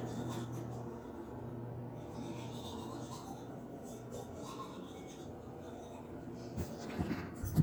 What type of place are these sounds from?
restroom